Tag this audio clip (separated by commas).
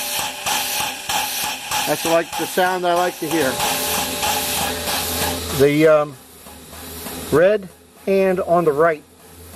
Steam, Vehicle, Train, Rail transport, Speech